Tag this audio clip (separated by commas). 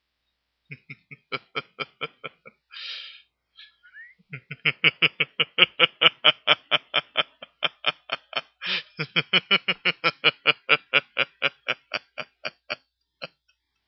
Laughter, Human voice